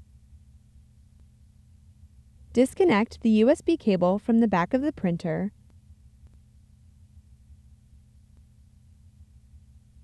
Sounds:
speech

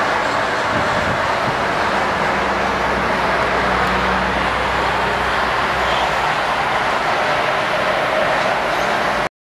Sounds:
sailing ship

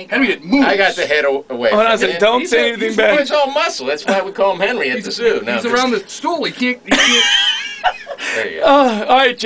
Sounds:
speech

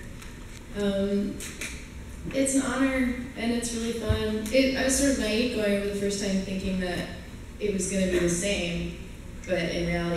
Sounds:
speech

